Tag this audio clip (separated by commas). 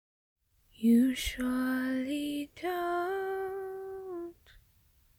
Singing, Human voice, Female singing